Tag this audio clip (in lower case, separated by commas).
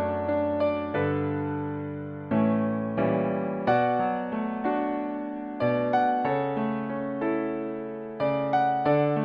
music